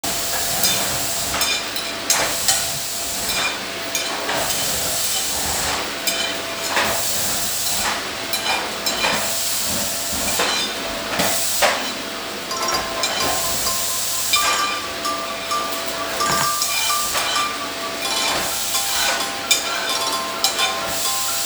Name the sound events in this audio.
vacuum cleaner, cutlery and dishes, phone ringing